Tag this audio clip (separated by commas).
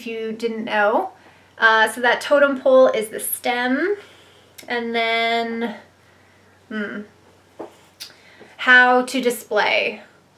Speech